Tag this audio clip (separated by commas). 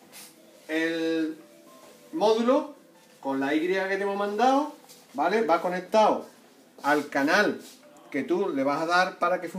Speech, Music